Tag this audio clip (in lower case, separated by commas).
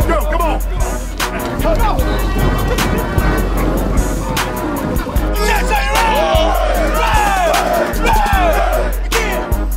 speech, crowd